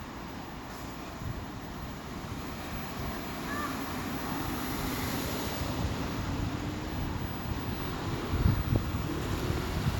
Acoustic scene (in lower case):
street